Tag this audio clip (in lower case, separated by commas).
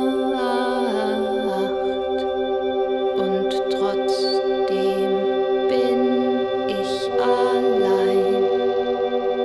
music, inside a large room or hall